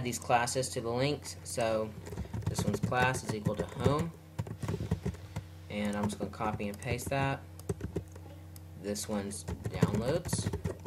A person talking, clicking, and typing